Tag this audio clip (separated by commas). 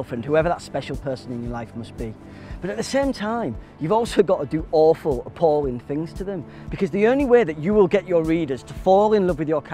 Music, Speech